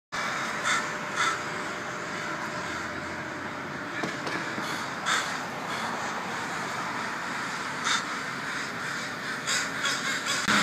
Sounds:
crow cawing

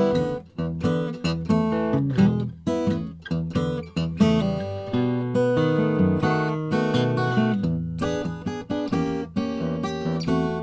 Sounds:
playing acoustic guitar
musical instrument
acoustic guitar
music
guitar
strum
plucked string instrument

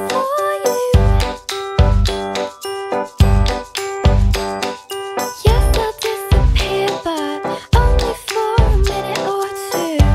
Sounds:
music

